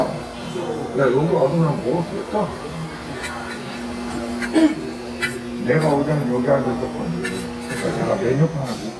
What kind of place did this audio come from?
crowded indoor space